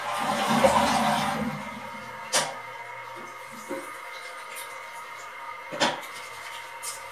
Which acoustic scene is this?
restroom